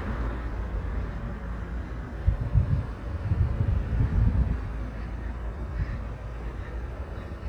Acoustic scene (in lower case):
street